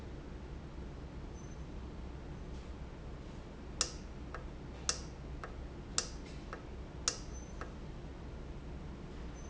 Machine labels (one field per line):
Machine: valve